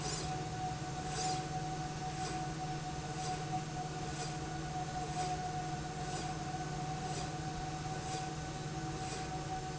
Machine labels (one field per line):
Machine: slide rail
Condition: normal